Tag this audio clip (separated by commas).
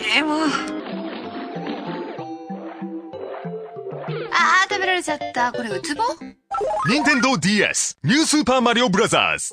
inside a small room, Speech, Music